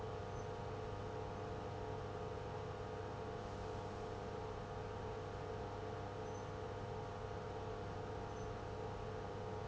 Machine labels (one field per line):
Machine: pump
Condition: abnormal